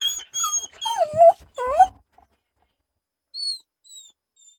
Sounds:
pets, Animal, Dog

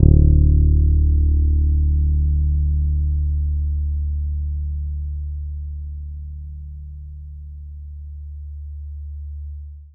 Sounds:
Guitar, Music, Plucked string instrument, Musical instrument, Bass guitar

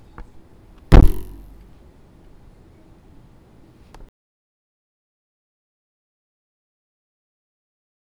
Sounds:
thud

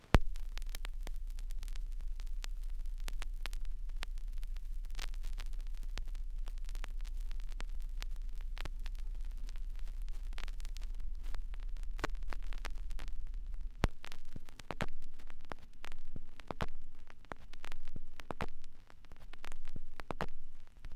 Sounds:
Crackle

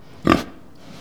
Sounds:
livestock, Animal

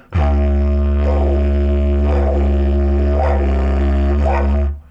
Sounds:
Music, Musical instrument

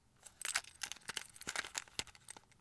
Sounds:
Domestic sounds, Keys jangling

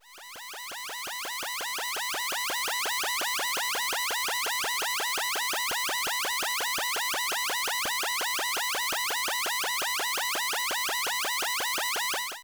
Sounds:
Alarm

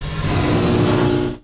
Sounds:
Engine

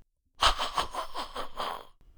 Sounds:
Human voice, Laughter

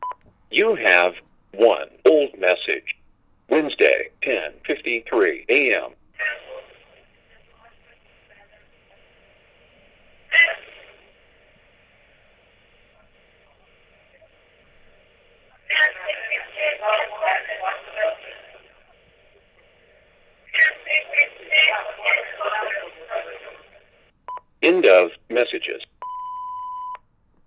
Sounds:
Telephone, Alarm

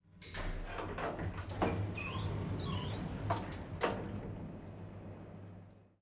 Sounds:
Door, home sounds, Sliding door

